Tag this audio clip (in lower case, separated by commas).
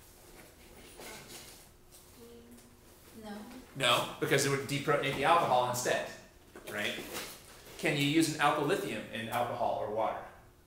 inside a small room, speech